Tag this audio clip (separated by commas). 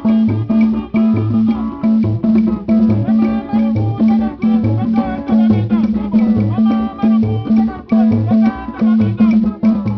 Percussion, Folk music, Musical instrument, Drum, Music